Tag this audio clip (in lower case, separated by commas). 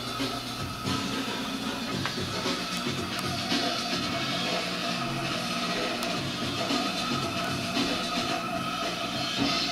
music